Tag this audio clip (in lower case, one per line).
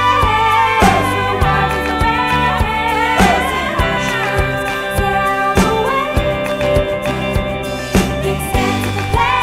music